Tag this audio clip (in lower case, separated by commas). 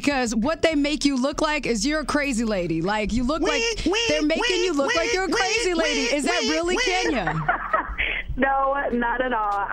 speech